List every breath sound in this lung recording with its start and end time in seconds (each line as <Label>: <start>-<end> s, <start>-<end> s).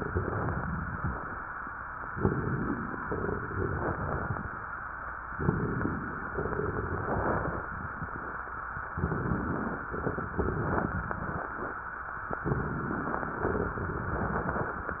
Inhalation: 2.03-3.00 s, 5.33-6.30 s, 8.94-9.90 s, 12.41-13.38 s
Exhalation: 0.00-1.39 s, 3.04-4.48 s, 6.32-7.76 s, 9.94-11.48 s, 13.45-14.99 s
Crackles: 0.00-1.39 s, 2.03-3.00 s, 3.04-4.48 s, 6.32-7.76 s, 8.94-9.90 s, 9.94-11.48 s, 12.41-13.38 s, 13.45-14.99 s